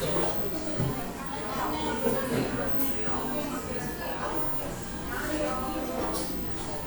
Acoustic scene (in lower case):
cafe